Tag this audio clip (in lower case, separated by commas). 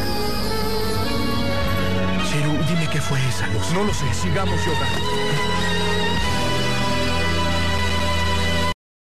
speech, music